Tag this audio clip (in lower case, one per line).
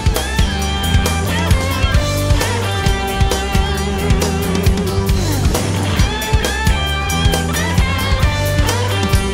music